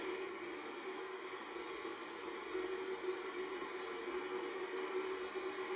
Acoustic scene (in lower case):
car